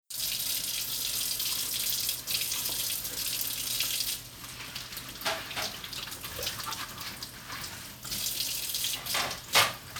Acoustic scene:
kitchen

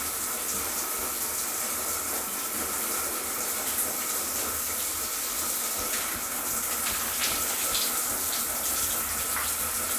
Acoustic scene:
restroom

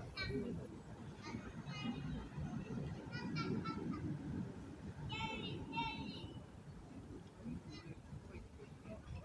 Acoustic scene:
residential area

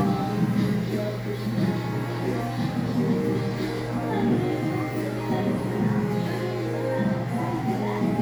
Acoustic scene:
cafe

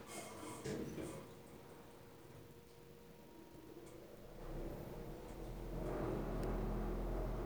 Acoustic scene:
elevator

